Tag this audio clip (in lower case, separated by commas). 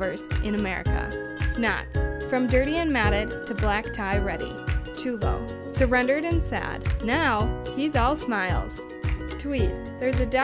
speech, music